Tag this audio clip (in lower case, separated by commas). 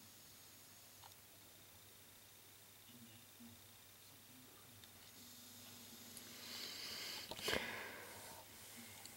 hiss